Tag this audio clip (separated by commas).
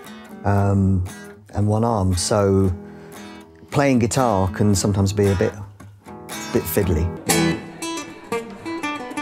Music, Independent music, Speech